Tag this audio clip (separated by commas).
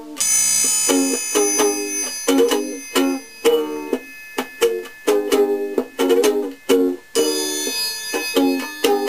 Music, inside a small room, Ukulele